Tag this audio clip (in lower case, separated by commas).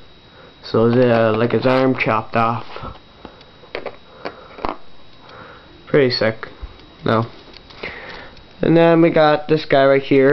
speech